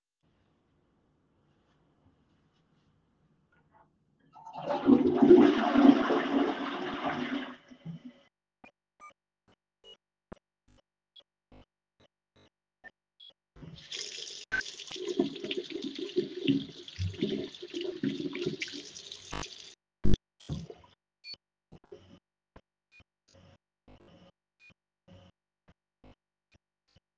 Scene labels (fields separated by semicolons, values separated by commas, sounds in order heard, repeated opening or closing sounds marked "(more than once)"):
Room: lavatory; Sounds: toilet flushing, running water